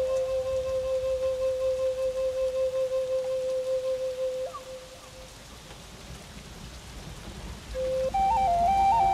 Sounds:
music, flute

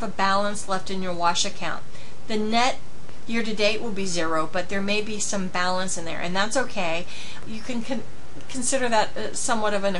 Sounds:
speech

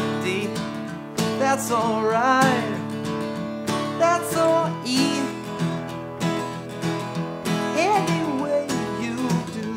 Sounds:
musical instrument, plucked string instrument, playing acoustic guitar, music, guitar, strum, acoustic guitar

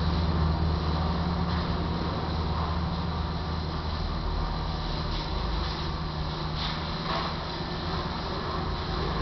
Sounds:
water vehicle, motorboat

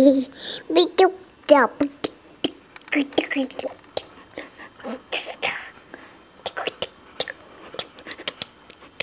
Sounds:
speech, child speech

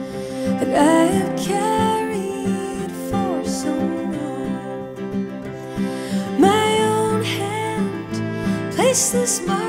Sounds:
music

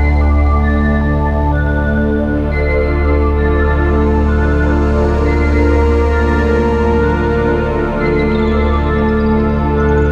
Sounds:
music, soundtrack music

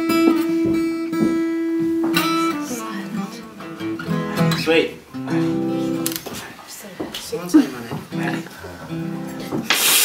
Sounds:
inside a large room or hall, music, speech

